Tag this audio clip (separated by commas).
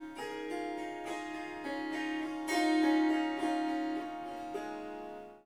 Harp, Musical instrument, Music